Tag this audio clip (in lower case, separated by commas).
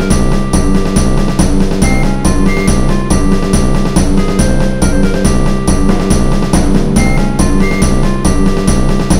music